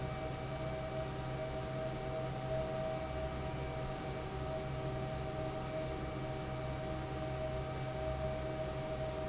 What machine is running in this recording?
fan